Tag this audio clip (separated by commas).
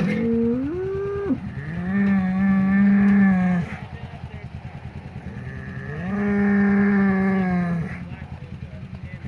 bull bellowing